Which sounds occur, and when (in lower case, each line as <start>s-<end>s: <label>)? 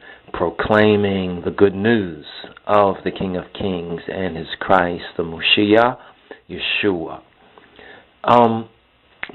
0.0s-0.2s: breathing
0.0s-9.3s: mechanisms
0.3s-6.0s: male speech
2.4s-2.6s: generic impact sounds
3.0s-3.2s: generic impact sounds
3.5s-3.8s: generic impact sounds
6.0s-6.4s: breathing
6.5s-7.2s: male speech
7.4s-8.0s: breathing
8.2s-8.7s: male speech
9.2s-9.3s: generic impact sounds